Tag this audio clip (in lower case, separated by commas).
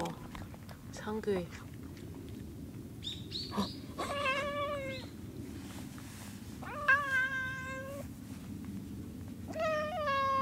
bird, tweet, bird song